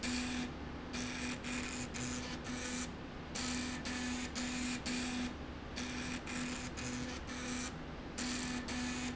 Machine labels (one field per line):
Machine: slide rail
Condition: abnormal